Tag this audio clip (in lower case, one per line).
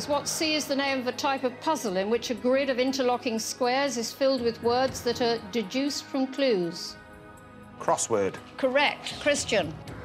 music
speech